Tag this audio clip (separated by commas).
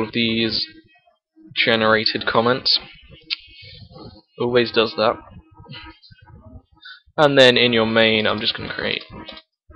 Speech